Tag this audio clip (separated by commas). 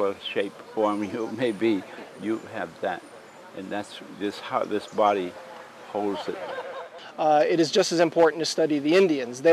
outside, rural or natural, Speech